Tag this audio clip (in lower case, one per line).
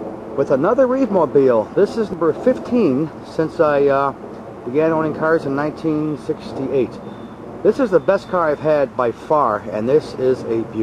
speech